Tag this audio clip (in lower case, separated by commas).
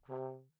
musical instrument, brass instrument, music